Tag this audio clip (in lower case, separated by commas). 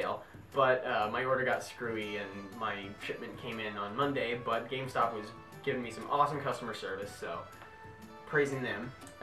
music, speech